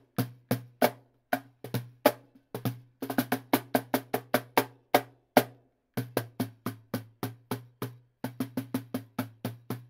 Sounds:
playing bongo

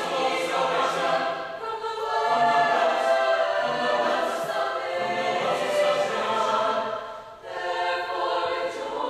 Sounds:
music

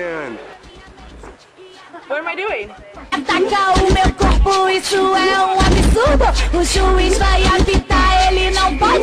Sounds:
music, speech

